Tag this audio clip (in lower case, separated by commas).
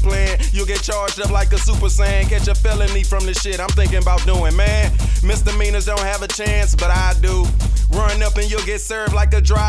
background music, soundtrack music, music